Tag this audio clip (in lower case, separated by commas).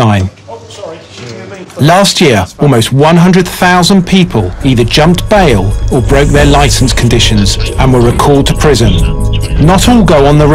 speech, music